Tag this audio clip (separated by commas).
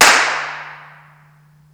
Clapping, Hands